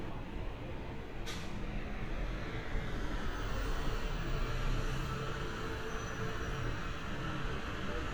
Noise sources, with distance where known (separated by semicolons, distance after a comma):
large-sounding engine